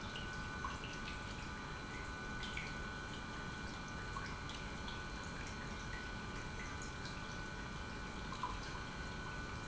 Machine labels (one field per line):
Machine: pump